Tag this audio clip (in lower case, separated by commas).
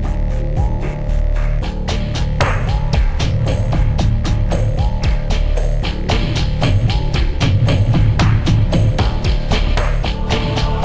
music